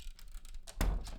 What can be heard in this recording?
door closing